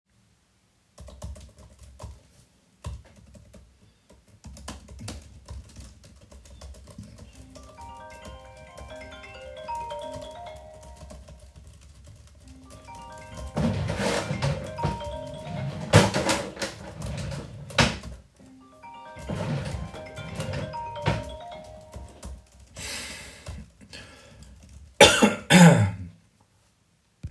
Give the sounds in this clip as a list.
keyboard typing, phone ringing, wardrobe or drawer